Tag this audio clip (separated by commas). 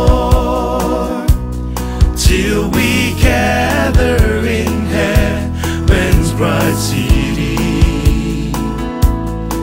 Singing